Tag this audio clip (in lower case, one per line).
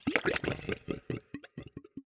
water
gurgling
liquid